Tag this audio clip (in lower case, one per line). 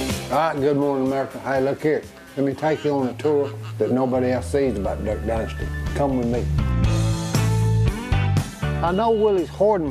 speech
music